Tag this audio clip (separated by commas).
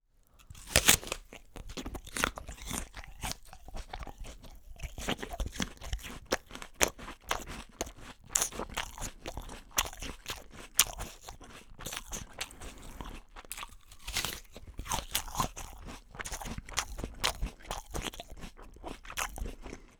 Chewing